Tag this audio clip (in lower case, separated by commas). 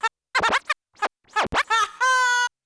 musical instrument, music, scratching (performance technique)